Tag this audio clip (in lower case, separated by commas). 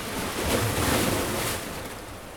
waves, ocean, water